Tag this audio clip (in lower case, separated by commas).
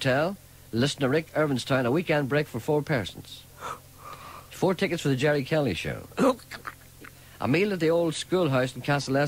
speech